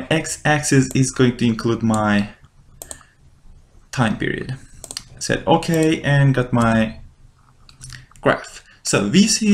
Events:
[0.00, 2.31] male speech
[0.00, 9.53] mechanisms
[0.82, 0.96] clicking
[1.87, 1.96] clicking
[2.12, 2.23] clicking
[2.37, 2.72] generic impact sounds
[2.77, 2.98] clicking
[2.78, 3.18] breathing
[3.90, 4.58] male speech
[4.81, 5.03] clicking
[5.16, 6.96] male speech
[5.75, 5.89] clicking
[6.54, 6.69] clicking
[6.67, 6.84] brief tone
[7.34, 7.67] generic impact sounds
[7.64, 7.96] clicking
[8.09, 8.19] clicking
[8.21, 8.61] male speech
[8.61, 8.83] breathing
[8.84, 9.53] male speech
[9.45, 9.53] tap

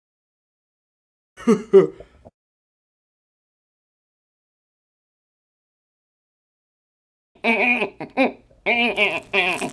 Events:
[1.32, 1.90] laughter
[1.83, 2.28] breathing
[8.61, 9.66] human sounds
[8.91, 9.72] crinkling

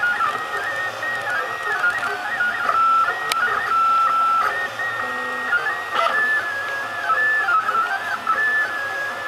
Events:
[0.00, 9.25] mechanisms
[3.27, 3.47] generic impact sounds

